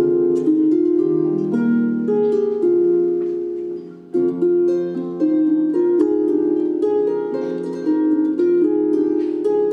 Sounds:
music
harp
musical instrument
playing harp
plucked string instrument

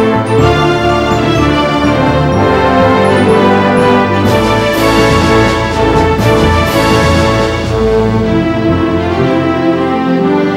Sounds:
music

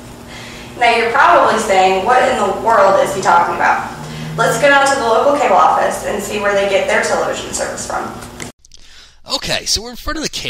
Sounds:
television
speech

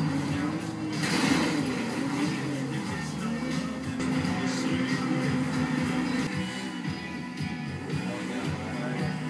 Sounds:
television

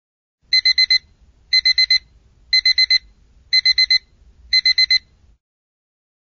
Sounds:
alarm clock

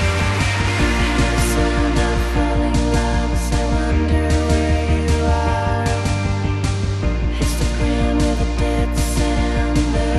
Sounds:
music

